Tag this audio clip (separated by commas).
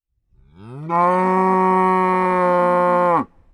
livestock, Animal